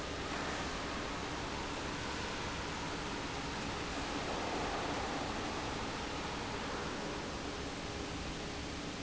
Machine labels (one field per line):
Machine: fan